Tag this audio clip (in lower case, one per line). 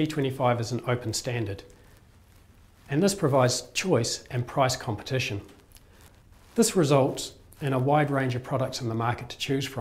speech